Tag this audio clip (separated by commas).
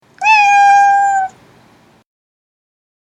Animal, pets, Cat, Meow